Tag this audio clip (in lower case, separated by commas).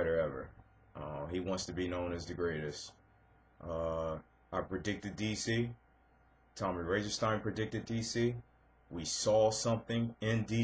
speech